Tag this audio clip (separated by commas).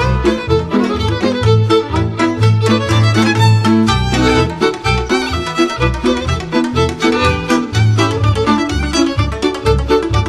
Music